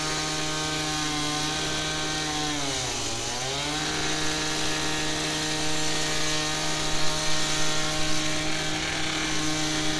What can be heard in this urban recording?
unidentified powered saw